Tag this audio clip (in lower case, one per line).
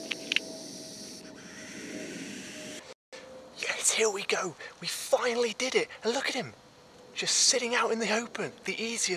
hiss
snake